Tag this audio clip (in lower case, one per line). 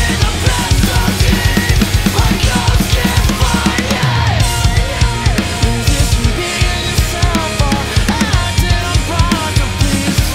music
drum
musical instrument
drum kit